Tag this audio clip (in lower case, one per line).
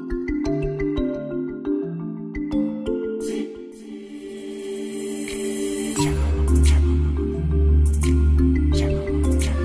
music